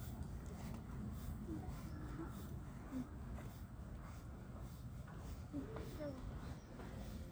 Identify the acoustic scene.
park